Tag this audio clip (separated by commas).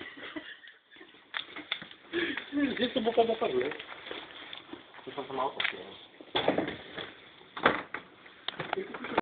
Speech